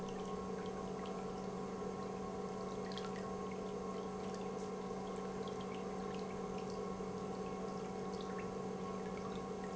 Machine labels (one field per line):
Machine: pump